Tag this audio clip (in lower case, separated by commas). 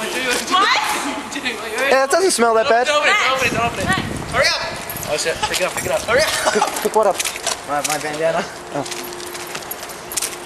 speech, vehicle